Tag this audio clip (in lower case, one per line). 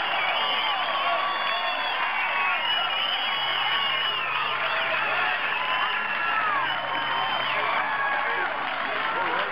speech